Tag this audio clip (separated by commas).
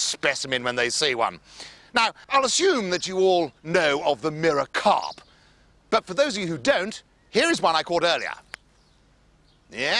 Speech